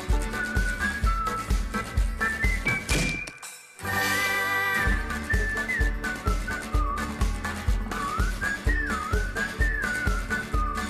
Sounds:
music

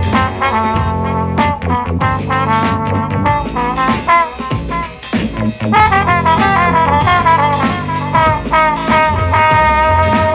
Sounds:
music
musical instrument

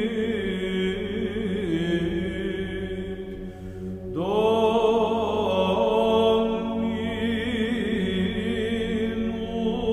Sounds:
mantra

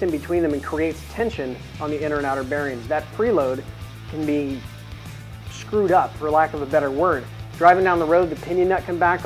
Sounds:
speech
music

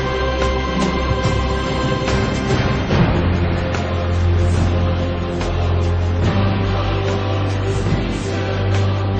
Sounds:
theme music

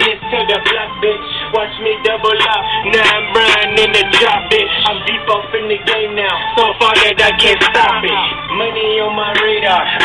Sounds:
music

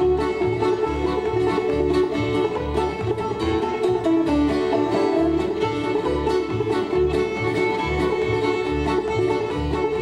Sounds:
playing banjo
musical instrument
fiddle
banjo
music
bowed string instrument
plucked string instrument

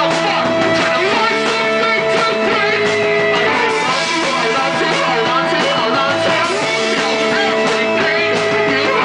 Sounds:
music

